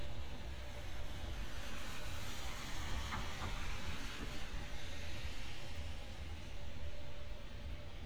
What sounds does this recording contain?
background noise